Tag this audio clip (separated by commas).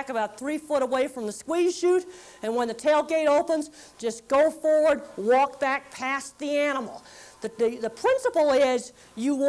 Speech